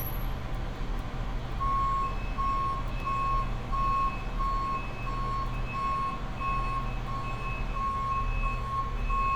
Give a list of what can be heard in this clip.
reverse beeper